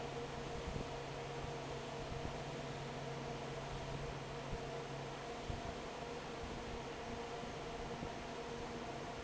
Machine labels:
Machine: fan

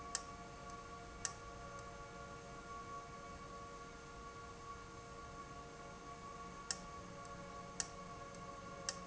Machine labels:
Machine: valve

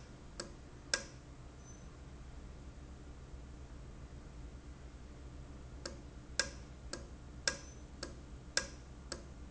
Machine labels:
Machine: valve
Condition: normal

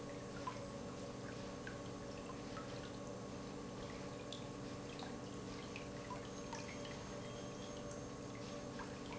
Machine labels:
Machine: pump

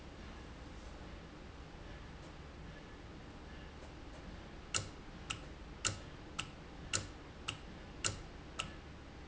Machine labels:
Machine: valve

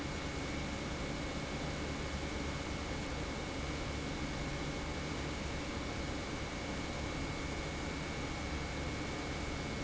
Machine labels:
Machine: pump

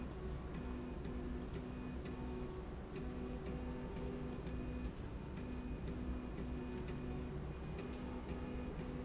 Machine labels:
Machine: slide rail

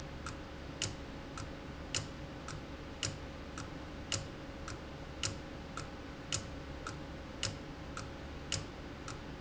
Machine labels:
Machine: valve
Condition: abnormal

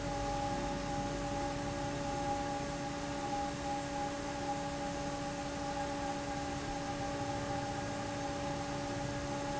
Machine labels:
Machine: fan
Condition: abnormal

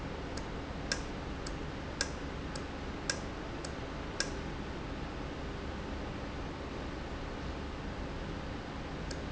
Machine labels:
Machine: valve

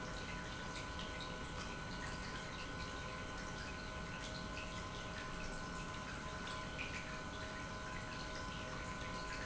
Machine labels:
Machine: pump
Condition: normal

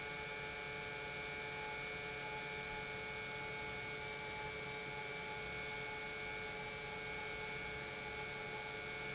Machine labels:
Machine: pump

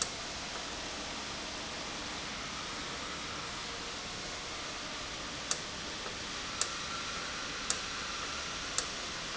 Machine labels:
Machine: valve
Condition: normal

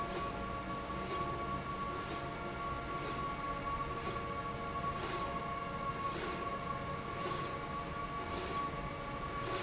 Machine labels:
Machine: slide rail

